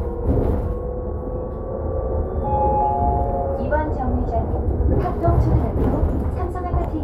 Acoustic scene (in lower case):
bus